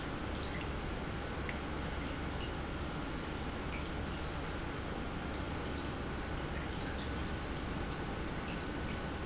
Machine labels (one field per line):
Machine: pump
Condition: normal